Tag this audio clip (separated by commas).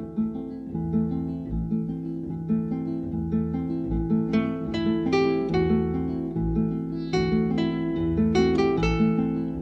Soundtrack music, Harp, Music